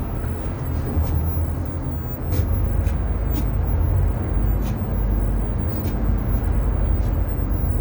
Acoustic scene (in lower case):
bus